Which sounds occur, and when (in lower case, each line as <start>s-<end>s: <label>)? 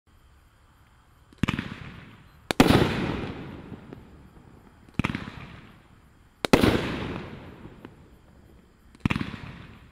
0.0s-9.9s: background noise
0.8s-0.9s: tick
1.3s-4.1s: fireworks
2.2s-2.4s: beep
3.9s-4.0s: tick
4.8s-5.8s: fireworks
6.4s-7.9s: fireworks
7.8s-7.9s: tick
8.5s-8.6s: tick
8.9s-9.9s: fireworks